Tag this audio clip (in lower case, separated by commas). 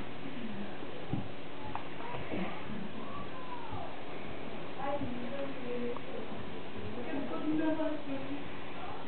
speech